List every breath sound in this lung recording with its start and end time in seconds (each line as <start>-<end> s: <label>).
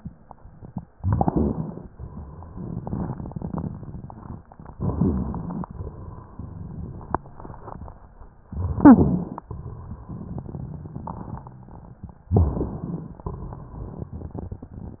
0.93-1.88 s: inhalation
0.93-1.88 s: crackles
1.92-4.35 s: exhalation
1.92-4.35 s: crackles
4.72-5.66 s: inhalation
4.72-5.66 s: crackles
5.69-8.27 s: exhalation
5.69-8.27 s: crackles
8.52-9.47 s: inhalation
8.79-9.36 s: wheeze
9.49-11.69 s: exhalation
9.49-11.69 s: crackles
12.35-12.87 s: wheeze
12.35-13.26 s: inhalation
13.30-15.00 s: exhalation
13.30-15.00 s: crackles